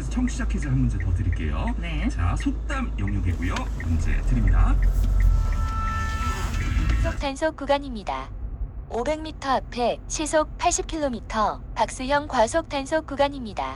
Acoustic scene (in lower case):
car